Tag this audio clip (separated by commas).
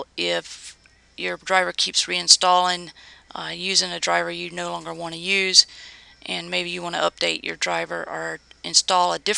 Speech